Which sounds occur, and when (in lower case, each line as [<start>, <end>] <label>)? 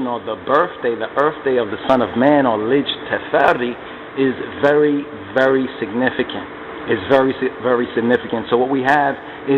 [0.00, 0.32] man speaking
[0.00, 9.55] mechanisms
[0.00, 9.55] monologue
[0.46, 1.03] man speaking
[1.17, 3.74] man speaking
[4.15, 4.38] man speaking
[4.60, 5.03] man speaking
[5.35, 5.65] man speaking
[5.81, 6.46] man speaking
[6.85, 7.47] man speaking
[7.63, 9.15] man speaking
[9.45, 9.55] man speaking